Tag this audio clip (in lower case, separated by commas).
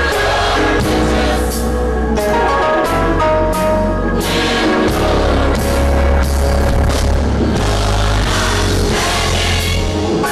gospel music, music